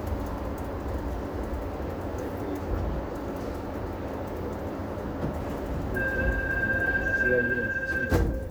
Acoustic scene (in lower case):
subway train